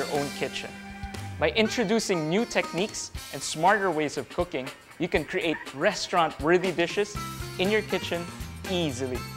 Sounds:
music, speech

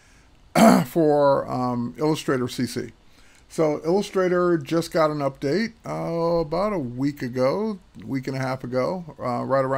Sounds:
speech

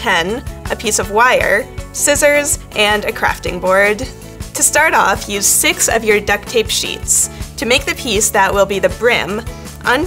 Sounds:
speech, music

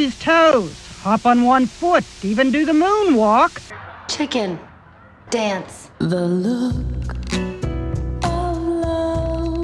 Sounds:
speech, music

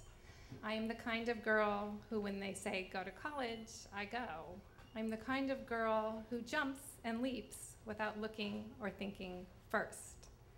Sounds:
speech

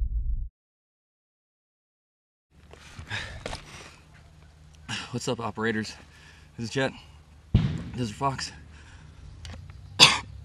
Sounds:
silence, speech

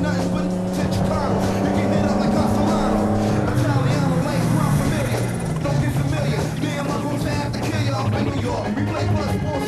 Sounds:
car, music, motor vehicle (road), vehicle, car passing by

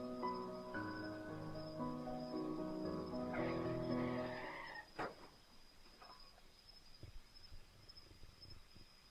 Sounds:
music

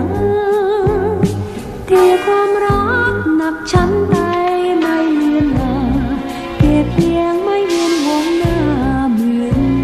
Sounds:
folk music, music

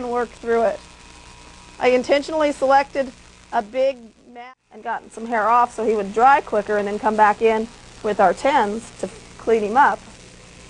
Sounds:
speech

